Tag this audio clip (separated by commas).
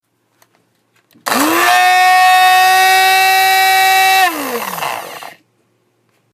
Domestic sounds